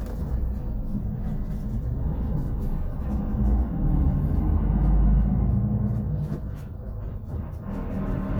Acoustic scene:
bus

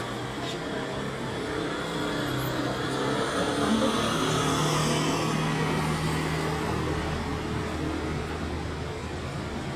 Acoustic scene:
street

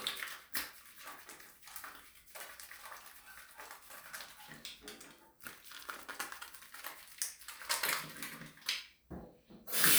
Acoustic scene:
restroom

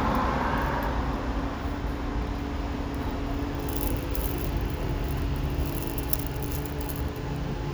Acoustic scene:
elevator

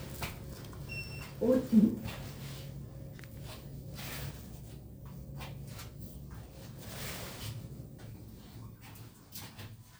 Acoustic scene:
elevator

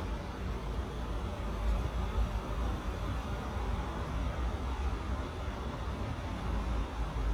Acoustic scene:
street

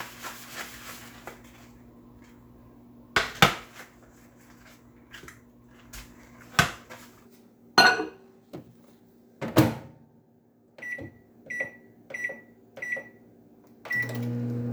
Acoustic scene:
kitchen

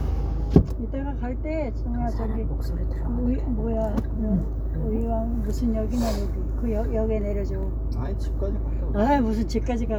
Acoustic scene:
car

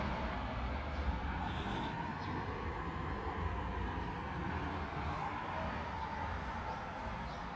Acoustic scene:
park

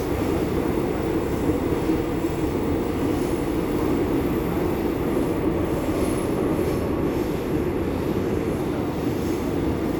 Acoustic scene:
subway train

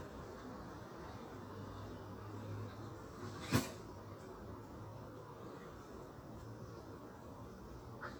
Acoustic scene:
park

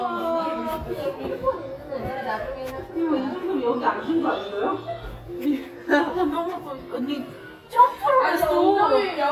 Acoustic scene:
crowded indoor space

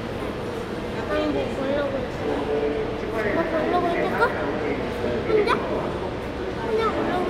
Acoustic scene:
crowded indoor space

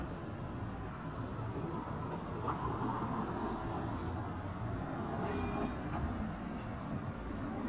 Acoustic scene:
residential area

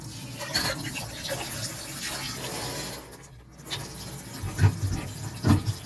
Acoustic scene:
kitchen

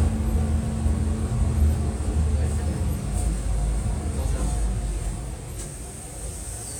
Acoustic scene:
bus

